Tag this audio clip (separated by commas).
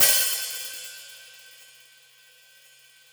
Cymbal, Musical instrument, Percussion, Hi-hat, Music